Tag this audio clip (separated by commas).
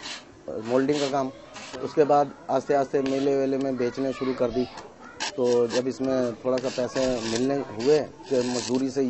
Speech